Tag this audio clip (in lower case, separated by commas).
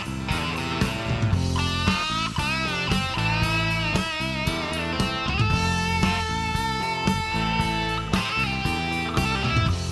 plucked string instrument, electric guitar, music, guitar, musical instrument